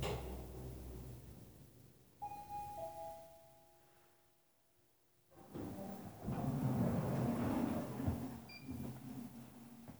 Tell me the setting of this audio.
elevator